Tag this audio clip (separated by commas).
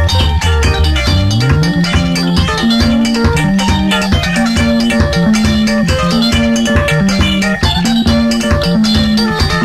Music, Steelpan